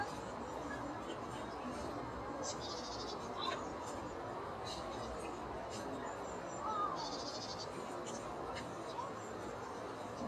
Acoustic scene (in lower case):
park